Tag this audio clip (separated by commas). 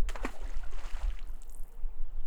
Liquid, Splash, Water